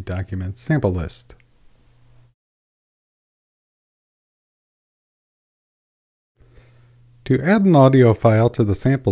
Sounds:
Speech

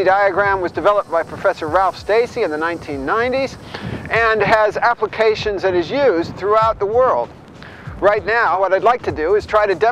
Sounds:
Speech

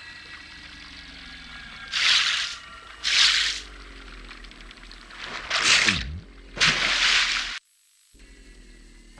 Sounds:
Mechanisms

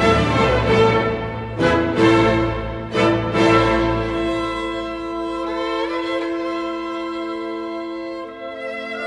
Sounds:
Violin, Music, Musical instrument

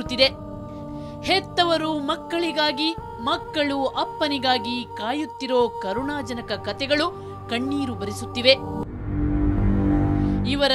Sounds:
Music, Speech

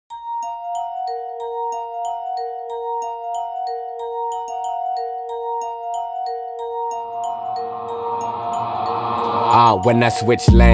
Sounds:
Glockenspiel, Music

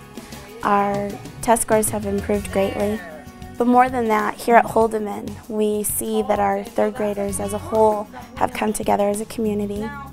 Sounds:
Speech, Music

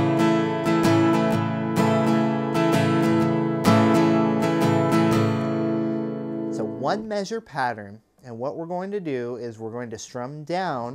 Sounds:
Speech, Music, Strum

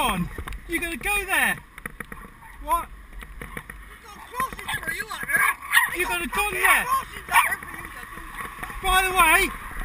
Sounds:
Speech

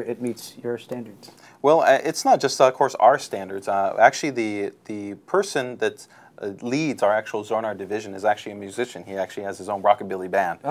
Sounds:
Speech

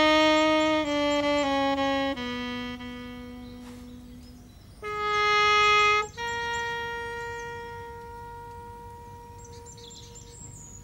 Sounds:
Music, outside, rural or natural

